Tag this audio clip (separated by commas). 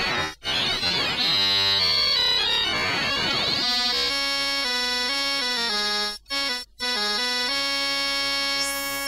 Keyboard (musical), Music, Musical instrument, Synthesizer